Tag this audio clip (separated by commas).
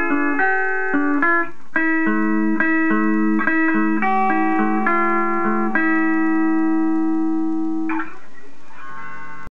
Acoustic guitar, Strum, Music, Musical instrument, Plucked string instrument, Guitar